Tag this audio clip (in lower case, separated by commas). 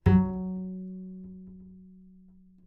bowed string instrument, music, musical instrument